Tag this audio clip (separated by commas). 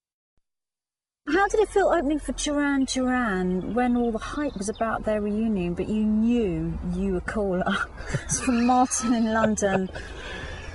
Female speech